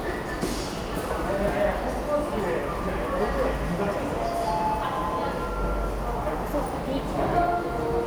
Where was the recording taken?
in a subway station